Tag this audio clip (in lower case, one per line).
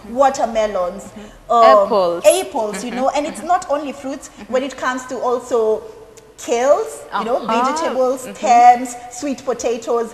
woman speaking
speech